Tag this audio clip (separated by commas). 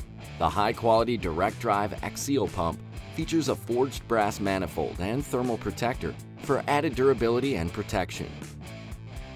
Speech, Music